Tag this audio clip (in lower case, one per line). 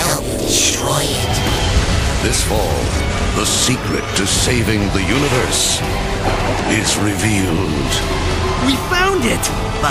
music
speech